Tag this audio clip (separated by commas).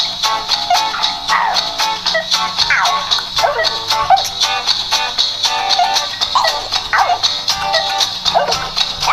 Music